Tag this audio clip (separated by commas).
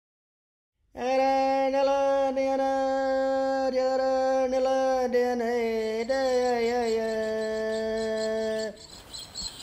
Bird, bird song